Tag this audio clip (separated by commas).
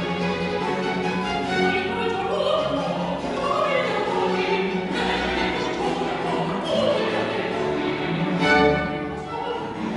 Bowed string instrument, Violin, Cello